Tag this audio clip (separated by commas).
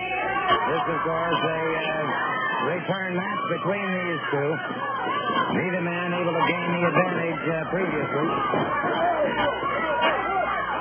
Speech